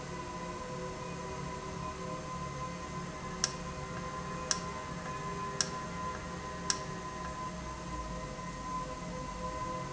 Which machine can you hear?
valve